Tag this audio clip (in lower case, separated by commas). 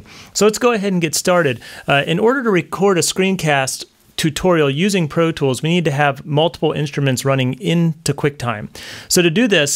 speech